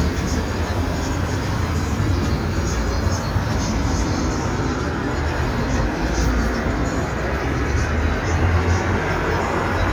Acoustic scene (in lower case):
street